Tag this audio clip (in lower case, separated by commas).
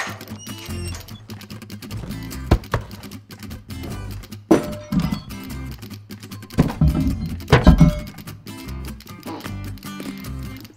music